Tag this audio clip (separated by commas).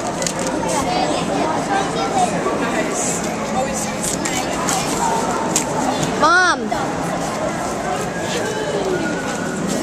Speech